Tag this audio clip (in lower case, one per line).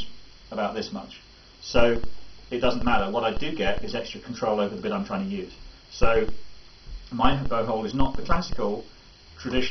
speech